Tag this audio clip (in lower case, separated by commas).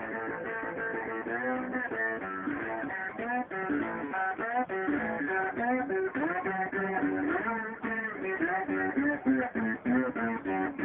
musical instrument, plucked string instrument, music, guitar, electric guitar, strum